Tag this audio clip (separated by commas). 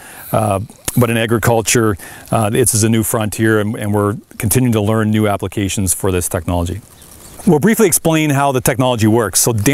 Speech, outside, rural or natural